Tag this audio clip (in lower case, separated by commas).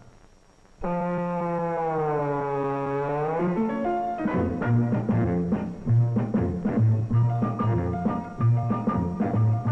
music